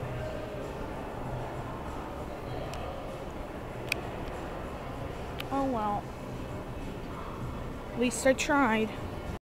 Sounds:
Speech

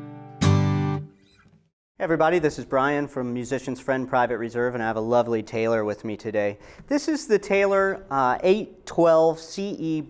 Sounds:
Musical instrument, Speech, Acoustic guitar, Strum, Guitar, Music, Plucked string instrument

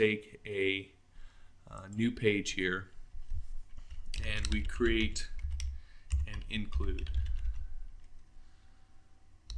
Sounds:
Speech

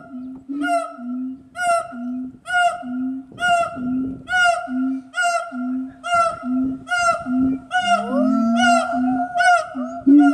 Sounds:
gibbon howling

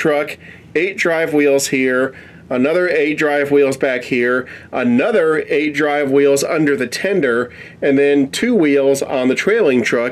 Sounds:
Speech

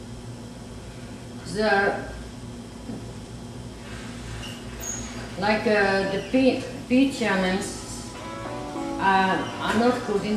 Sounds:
Speech, Music

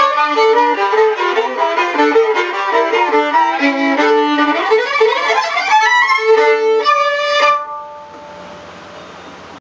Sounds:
Violin, Music, Musical instrument

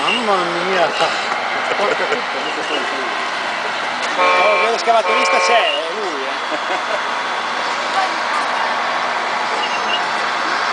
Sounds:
Speech

